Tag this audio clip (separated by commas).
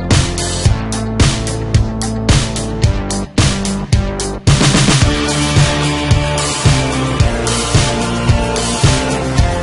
Music